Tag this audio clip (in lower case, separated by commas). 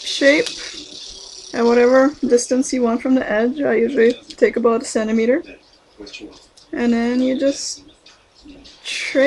speech